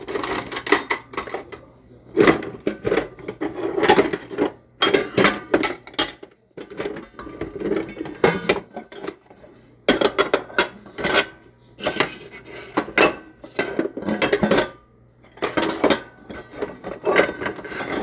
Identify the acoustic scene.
kitchen